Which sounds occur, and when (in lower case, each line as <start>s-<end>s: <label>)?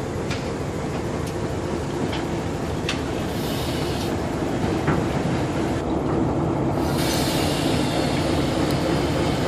0.0s-9.4s: train
0.0s-9.4s: wind
0.2s-0.4s: clickety-clack
0.9s-1.3s: clickety-clack
2.1s-2.2s: clickety-clack
2.8s-3.0s: clickety-clack
3.3s-4.1s: hiss
3.9s-4.1s: clickety-clack
4.6s-5.0s: clickety-clack
6.8s-9.4s: hiss